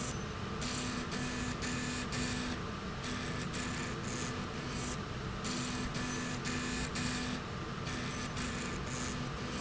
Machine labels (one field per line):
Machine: slide rail